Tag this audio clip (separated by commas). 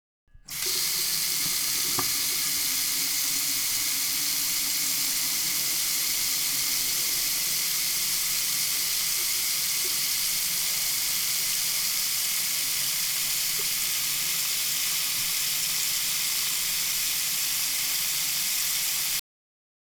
Domestic sounds, Sink (filling or washing)